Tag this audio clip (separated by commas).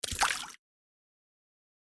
Liquid, Splash